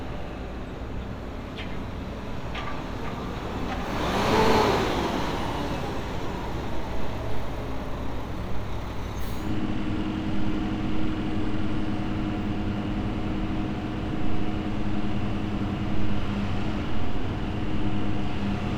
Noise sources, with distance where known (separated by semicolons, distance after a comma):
large-sounding engine, near